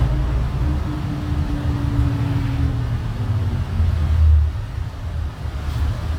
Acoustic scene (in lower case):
bus